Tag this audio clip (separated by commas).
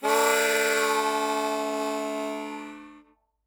Music, Musical instrument, Harmonica